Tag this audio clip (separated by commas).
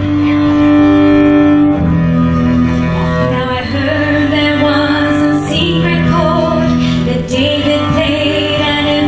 Plucked string instrument, Music, Guitar, Strum, Musical instrument, Cello, Female singing